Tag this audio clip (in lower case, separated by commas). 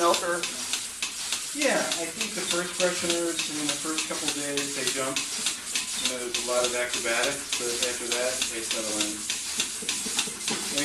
speech